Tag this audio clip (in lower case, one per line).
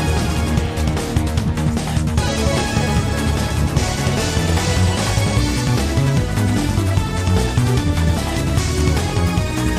music